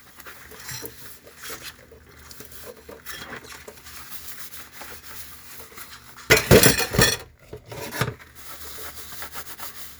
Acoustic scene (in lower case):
kitchen